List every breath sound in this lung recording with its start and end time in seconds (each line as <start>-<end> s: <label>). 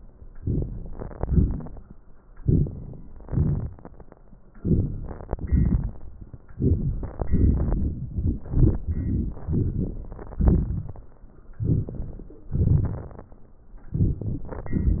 0.38-0.91 s: inhalation
1.19-1.87 s: exhalation
2.35-2.73 s: inhalation
3.26-3.72 s: exhalation
4.59-4.91 s: inhalation
5.47-5.91 s: exhalation
6.58-7.15 s: inhalation
7.31-8.13 s: exhalation
11.64-12.34 s: inhalation
12.57-13.27 s: exhalation